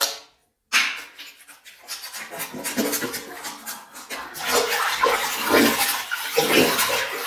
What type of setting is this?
restroom